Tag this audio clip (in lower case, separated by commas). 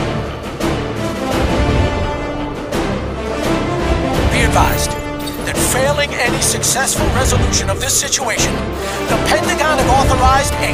music, speech